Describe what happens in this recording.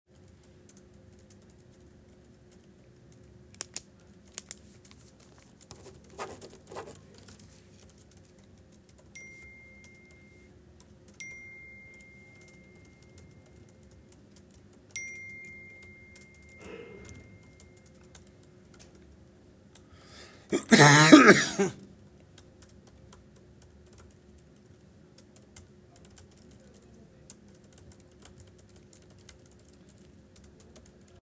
I clicked the pen and signed on a paper while someone was typing on a keyboard next to me. Finally, I received some notifications.